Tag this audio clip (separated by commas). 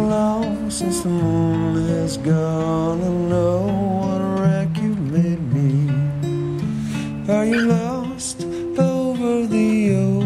Music